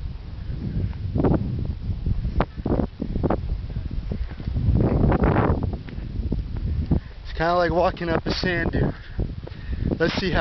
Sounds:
speech, footsteps

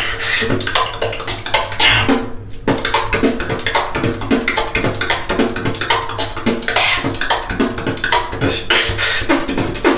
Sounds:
beat boxing

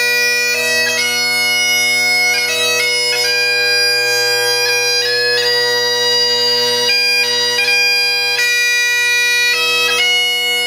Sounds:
bagpipes, wind instrument

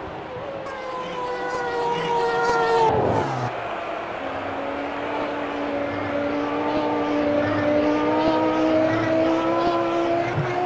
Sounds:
race car, car

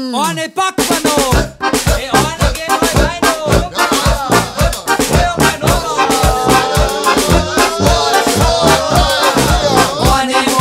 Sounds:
male speech, music

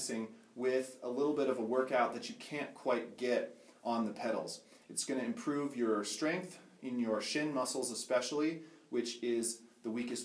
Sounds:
speech

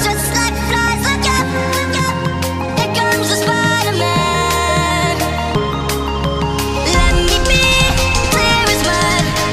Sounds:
electronic music, dubstep, music

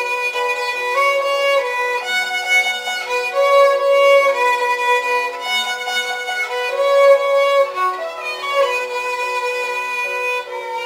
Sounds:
violin, music, musical instrument

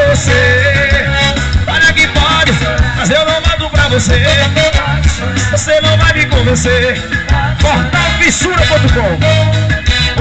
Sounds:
music

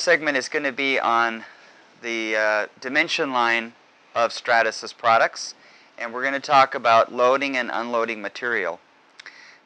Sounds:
speech

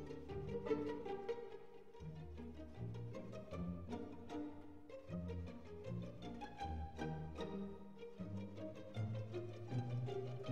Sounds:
music, musical instrument

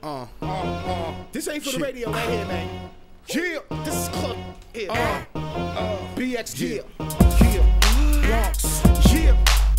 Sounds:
speech, music

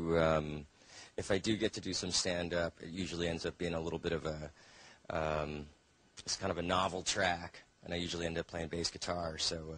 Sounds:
speech

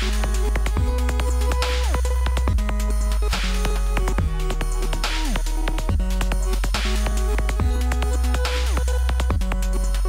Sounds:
electronic music, music, dubstep

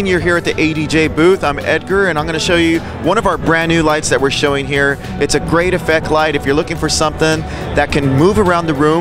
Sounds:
music, speech

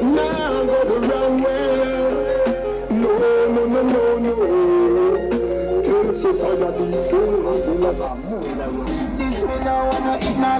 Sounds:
music

